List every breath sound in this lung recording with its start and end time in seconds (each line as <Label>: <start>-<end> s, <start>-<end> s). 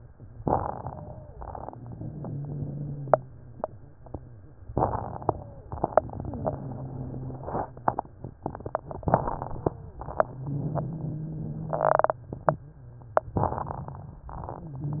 Inhalation: 0.32-1.22 s, 4.69-5.58 s, 9.11-10.00 s, 13.40-14.29 s
Exhalation: 1.50-3.32 s, 5.81-7.53 s, 10.21-12.31 s
Wheeze: 1.50-3.32 s, 5.81-7.53 s, 10.21-12.31 s
Crackles: 0.32-1.22 s, 4.69-5.58 s, 9.11-10.00 s, 13.40-14.29 s